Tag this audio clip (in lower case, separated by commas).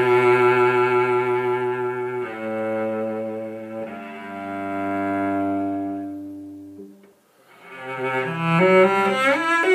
cello, double bass, bowed string instrument